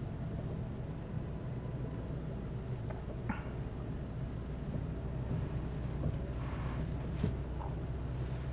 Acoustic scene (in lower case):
car